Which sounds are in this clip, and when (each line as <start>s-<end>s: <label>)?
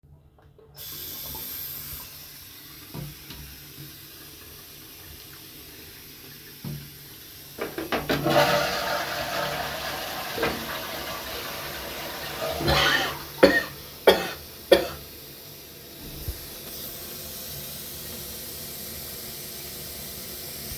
0.7s-20.8s: running water
7.5s-13.4s: toilet flushing